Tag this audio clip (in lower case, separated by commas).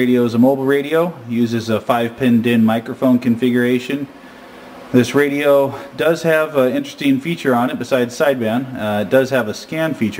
speech